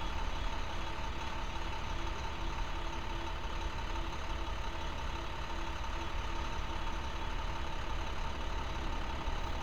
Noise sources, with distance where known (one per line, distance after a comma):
engine of unclear size